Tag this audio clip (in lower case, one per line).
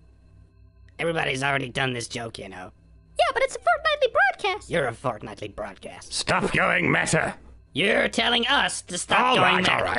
speech